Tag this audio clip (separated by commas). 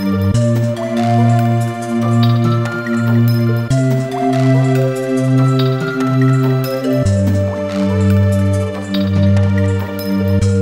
Music